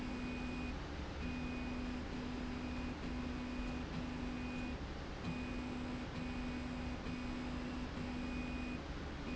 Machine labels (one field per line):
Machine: slide rail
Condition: normal